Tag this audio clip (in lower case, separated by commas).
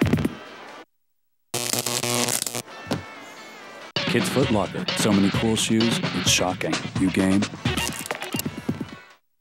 hum